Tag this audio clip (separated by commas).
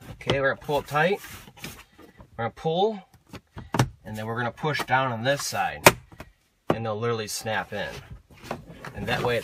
Speech